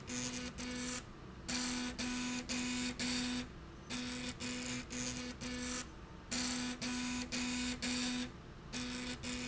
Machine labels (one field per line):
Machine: slide rail